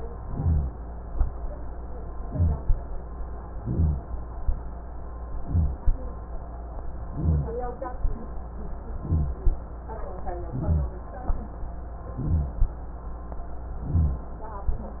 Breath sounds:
Inhalation: 0.21-0.72 s, 2.26-2.77 s, 3.59-4.10 s, 5.43-5.86 s, 7.13-7.57 s, 9.01-9.45 s, 10.53-10.97 s, 12.18-12.62 s, 13.85-14.29 s
Rhonchi: 0.21-0.72 s, 2.26-2.77 s, 3.59-4.10 s, 5.43-5.86 s, 7.13-7.57 s, 9.01-9.45 s, 10.53-10.97 s, 12.18-12.62 s, 13.85-14.29 s

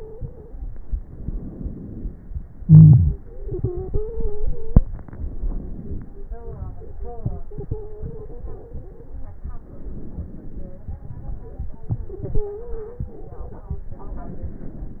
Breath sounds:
Inhalation: 0.83-2.55 s, 4.83-6.18 s, 9.39-11.69 s, 13.91-15.00 s
Exhalation: 2.59-4.82 s, 6.20-9.36 s, 11.68-13.90 s
Stridor: 0.00-0.50 s, 3.19-4.87 s, 7.49-9.15 s, 12.09-13.24 s
Crackles: 9.38-11.67 s

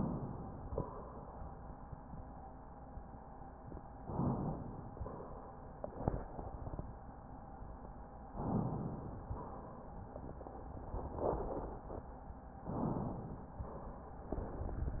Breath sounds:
Inhalation: 4.01-4.89 s, 8.39-9.26 s, 12.65-13.52 s
Exhalation: 0.66-1.35 s, 4.92-5.82 s, 9.30-10.14 s, 13.53-14.34 s

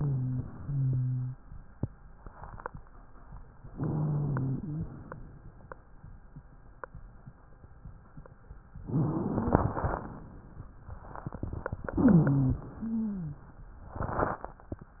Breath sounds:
Inhalation: 3.69-4.94 s, 8.81-10.06 s, 11.90-12.69 s
Wheeze: 0.00-0.46 s, 0.56-1.43 s, 3.69-4.94 s, 8.81-10.06 s, 11.90-12.69 s, 12.73-13.47 s

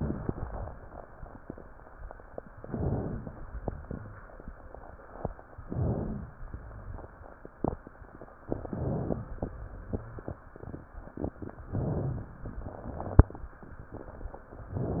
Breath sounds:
Inhalation: 2.64-3.34 s, 5.64-6.34 s, 8.52-9.22 s, 11.73-12.43 s
Rhonchi: 2.64-3.34 s, 5.64-6.34 s, 8.52-9.22 s, 11.73-12.43 s

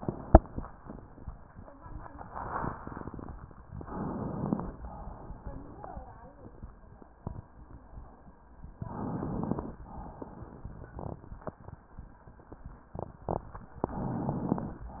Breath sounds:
Inhalation: 3.73-4.78 s, 8.82-9.81 s
Exhalation: 4.79-6.01 s, 9.84-11.82 s
Crackles: 3.73-4.78 s, 8.82-9.81 s, 9.84-11.82 s

